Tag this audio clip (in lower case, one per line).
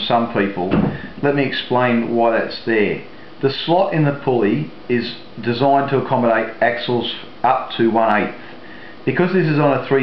speech